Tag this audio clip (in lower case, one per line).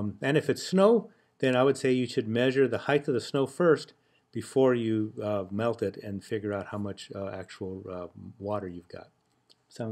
speech